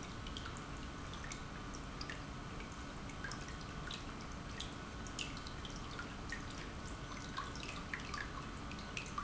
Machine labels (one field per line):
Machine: pump